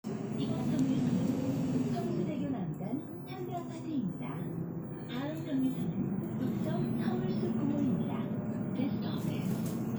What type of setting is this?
bus